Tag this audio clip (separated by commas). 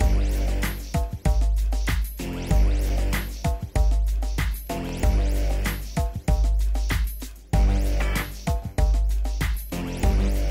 Music